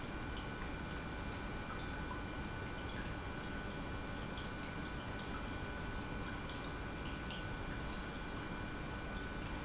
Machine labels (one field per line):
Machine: pump